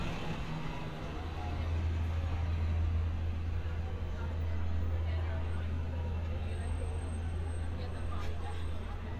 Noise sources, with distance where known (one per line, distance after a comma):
medium-sounding engine
person or small group talking, near